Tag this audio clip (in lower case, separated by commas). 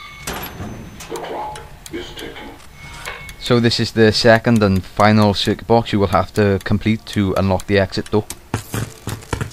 speech